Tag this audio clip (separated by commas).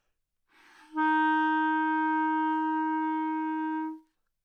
Musical instrument, Wind instrument, Music